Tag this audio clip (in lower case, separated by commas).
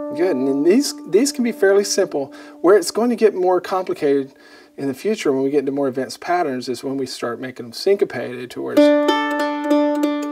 musical instrument, plucked string instrument, speech, mandolin, music